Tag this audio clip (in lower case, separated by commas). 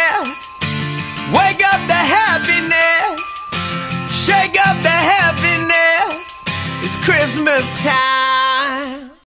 music